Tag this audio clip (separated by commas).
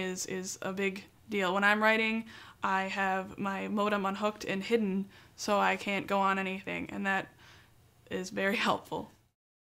Speech